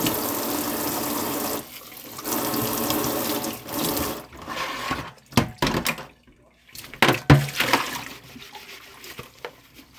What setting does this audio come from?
kitchen